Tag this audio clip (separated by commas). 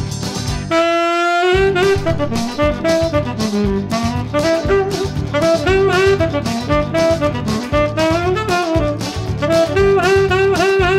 Brass instrument, Saxophone, playing saxophone